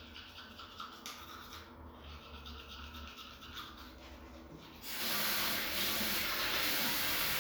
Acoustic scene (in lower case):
restroom